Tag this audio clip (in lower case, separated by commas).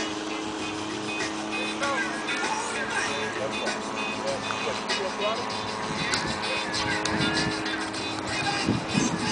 music, aircraft, speech, vehicle, jet engine